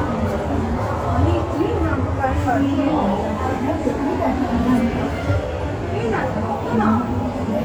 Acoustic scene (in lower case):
subway station